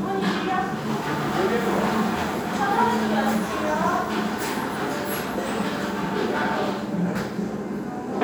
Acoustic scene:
restaurant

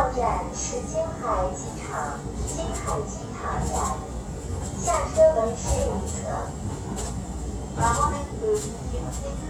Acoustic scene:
subway train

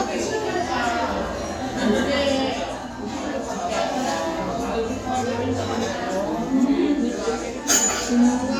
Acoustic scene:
restaurant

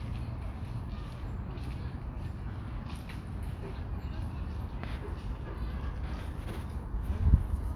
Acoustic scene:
park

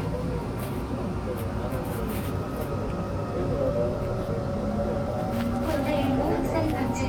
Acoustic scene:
subway train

